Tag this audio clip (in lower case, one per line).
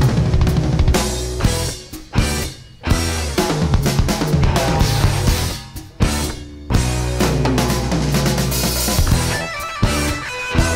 rock music
music